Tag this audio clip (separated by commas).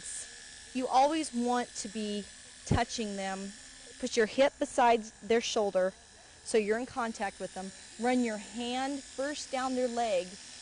Speech